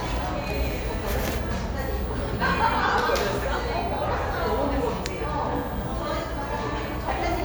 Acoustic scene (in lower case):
cafe